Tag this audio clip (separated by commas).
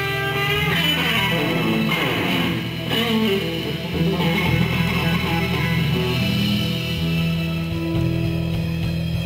Strum, Electric guitar, Music, Musical instrument, Plucked string instrument, Guitar